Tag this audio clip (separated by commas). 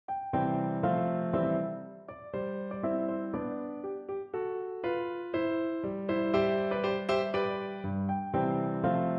Music